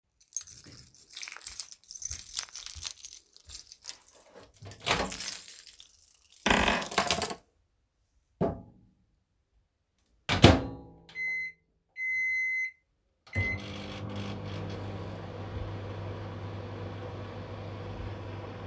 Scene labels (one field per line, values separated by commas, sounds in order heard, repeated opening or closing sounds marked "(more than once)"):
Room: kitchen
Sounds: keys, footsteps, microwave